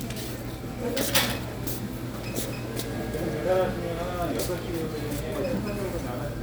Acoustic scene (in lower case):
crowded indoor space